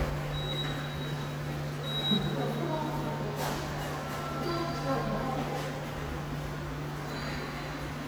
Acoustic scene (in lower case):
subway station